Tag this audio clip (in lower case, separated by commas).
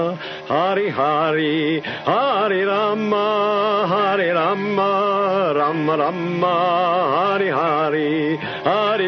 mantra, music